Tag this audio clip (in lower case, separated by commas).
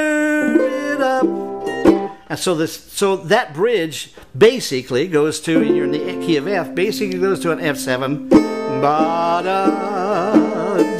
speech, musical instrument, music, acoustic guitar, plucked string instrument, banjo